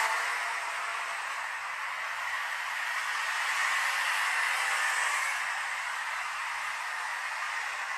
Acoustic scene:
street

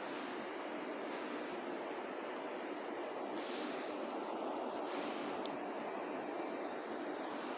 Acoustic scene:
residential area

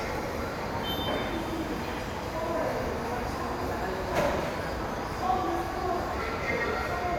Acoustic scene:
subway station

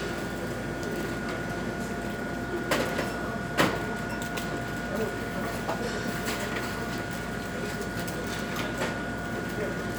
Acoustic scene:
cafe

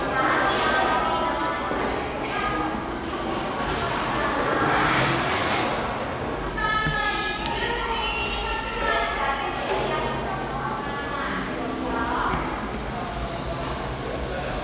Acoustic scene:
cafe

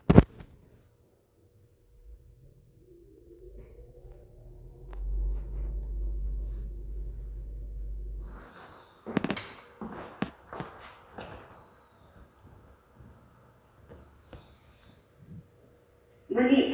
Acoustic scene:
elevator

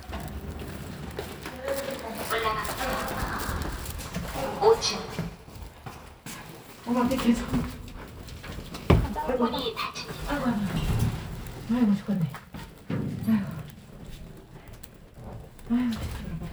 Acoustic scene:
elevator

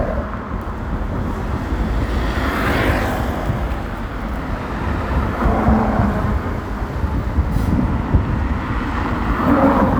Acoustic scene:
street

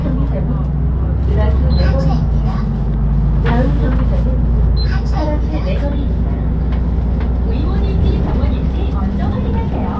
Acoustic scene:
bus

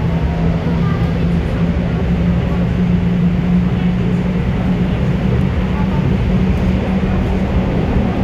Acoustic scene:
subway train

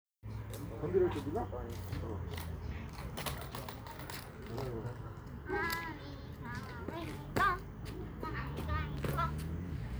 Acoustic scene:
park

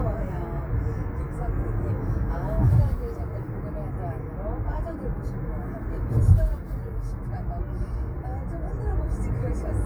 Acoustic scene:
car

